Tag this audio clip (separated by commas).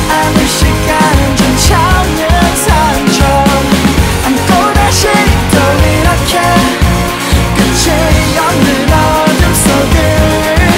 Music